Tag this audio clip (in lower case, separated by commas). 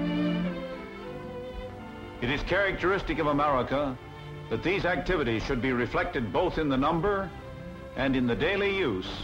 speech, music